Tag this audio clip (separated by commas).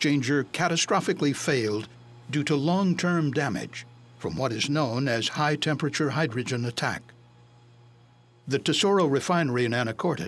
Speech